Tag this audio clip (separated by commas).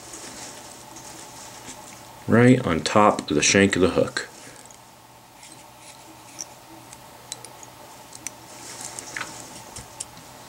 Speech